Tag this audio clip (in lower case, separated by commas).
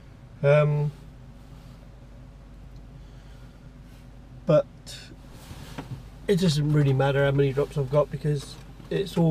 speech